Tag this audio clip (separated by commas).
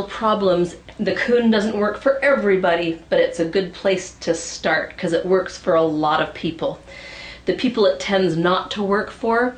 Speech